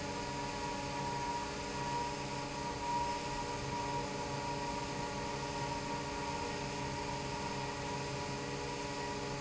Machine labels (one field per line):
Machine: fan